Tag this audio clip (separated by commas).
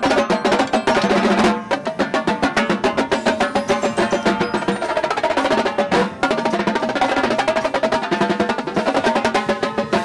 Percussion, Drum roll, Snare drum, playing snare drum, Drum